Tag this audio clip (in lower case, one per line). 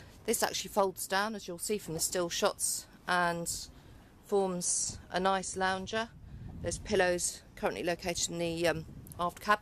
speech